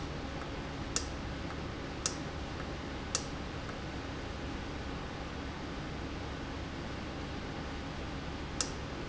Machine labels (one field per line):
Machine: valve